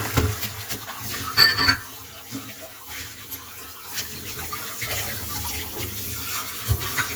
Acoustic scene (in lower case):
kitchen